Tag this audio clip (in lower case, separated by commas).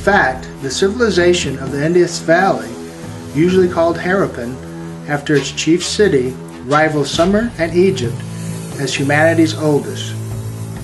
music, speech